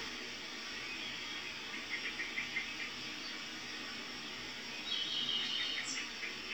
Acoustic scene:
park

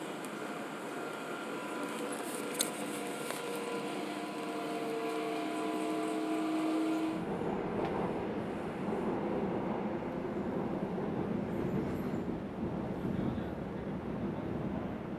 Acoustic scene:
subway train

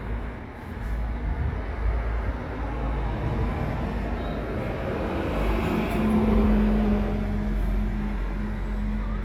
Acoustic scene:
street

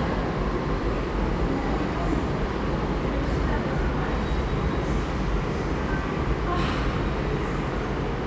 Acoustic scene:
subway station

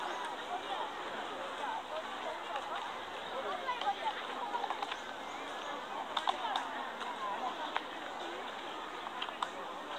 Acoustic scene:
park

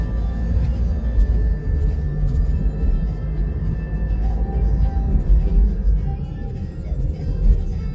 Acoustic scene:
car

